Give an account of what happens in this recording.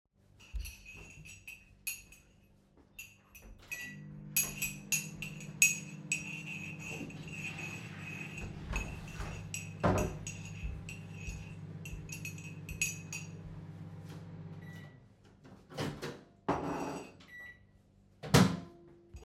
I was doing the dishes and then put something in the microwave. Meanwhile, my roomate flushed the toilet.